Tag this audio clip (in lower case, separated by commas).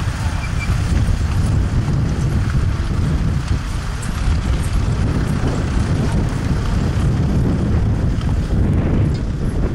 outside, rural or natural